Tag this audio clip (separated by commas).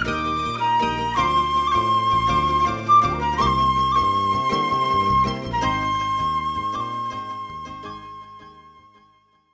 playing flute, Wind instrument, Flute